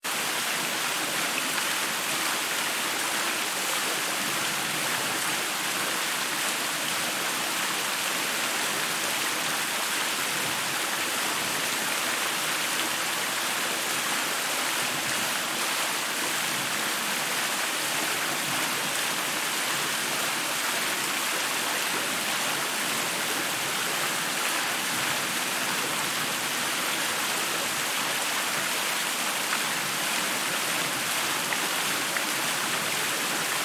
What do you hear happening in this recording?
I walked down the hall and into the bathroom. I turned on the tap and let the water run as I washed my hands. I turned it off once I was done and dried off with a towel.